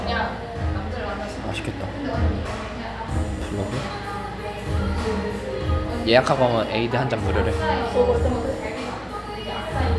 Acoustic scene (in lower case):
cafe